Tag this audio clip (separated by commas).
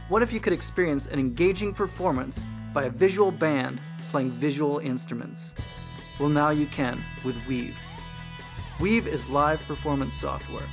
Speech, Music